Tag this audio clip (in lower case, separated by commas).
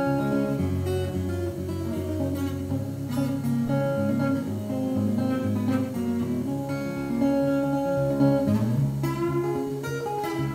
musical instrument, strum, plucked string instrument, guitar, music